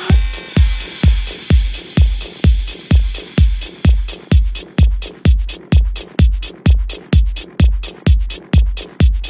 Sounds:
Music, Drum machine

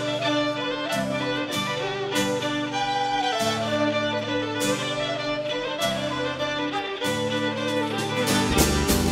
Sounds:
Music

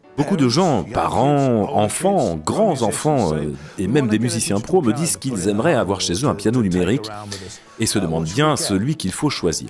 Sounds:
Music, Speech

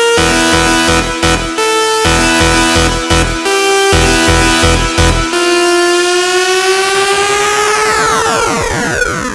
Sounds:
Music

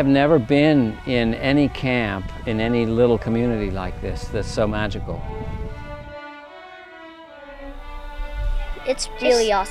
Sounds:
Musical instrument, Speech, fiddle, Music

